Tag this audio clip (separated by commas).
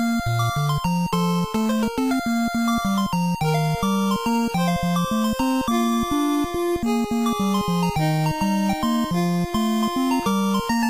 Music